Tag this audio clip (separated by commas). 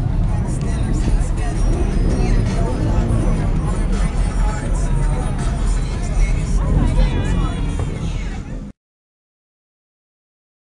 Motor vehicle (road), Car passing by, Vehicle, Speech, Music, Car